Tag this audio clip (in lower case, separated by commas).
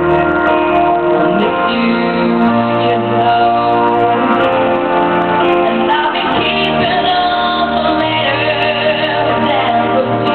child singing, male singing, music